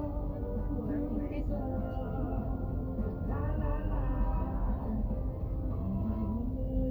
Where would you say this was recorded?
in a car